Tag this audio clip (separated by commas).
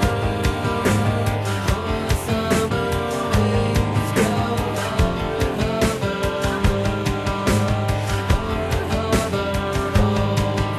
Music